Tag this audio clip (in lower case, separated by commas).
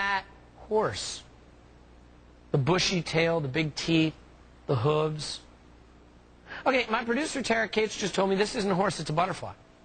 speech